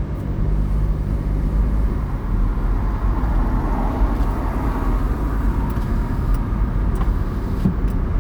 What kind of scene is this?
car